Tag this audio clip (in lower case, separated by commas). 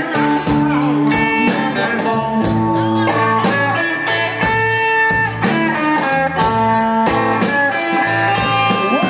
blues, music, singing